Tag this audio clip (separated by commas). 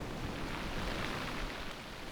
Waves, Ocean, Water